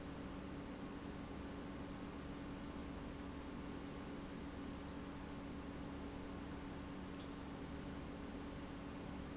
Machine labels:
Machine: pump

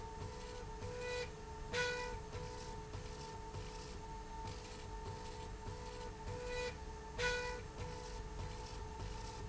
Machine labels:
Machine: slide rail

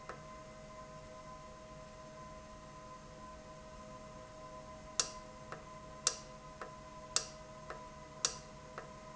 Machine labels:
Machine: valve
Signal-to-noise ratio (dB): 6 dB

